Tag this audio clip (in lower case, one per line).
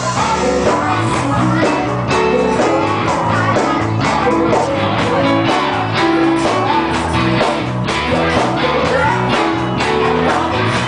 music
female singing